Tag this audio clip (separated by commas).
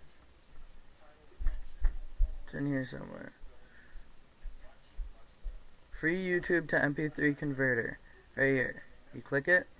Speech